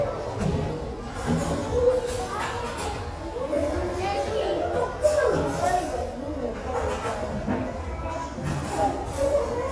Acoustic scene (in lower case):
restaurant